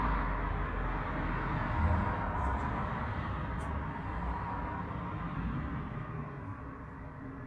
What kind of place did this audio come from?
street